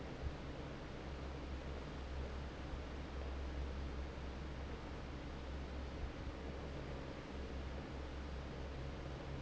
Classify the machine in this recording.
fan